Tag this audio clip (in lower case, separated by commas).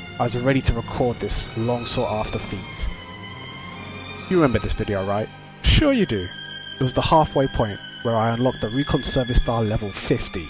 speech, music